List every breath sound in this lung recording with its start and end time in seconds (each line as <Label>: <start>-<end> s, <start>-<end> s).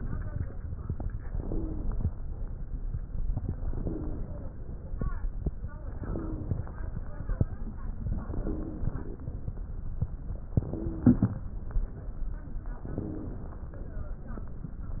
Inhalation: 1.22-2.11 s, 3.61-4.54 s, 5.92-6.85 s, 8.29-9.11 s, 10.57-11.40 s, 12.81-13.66 s
Wheeze: 1.39-1.86 s, 3.70-4.27 s, 6.00-6.57 s, 8.41-9.01 s, 10.74-11.35 s, 12.96-13.49 s